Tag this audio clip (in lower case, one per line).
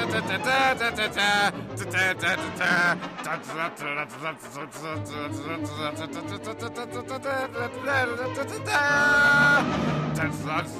music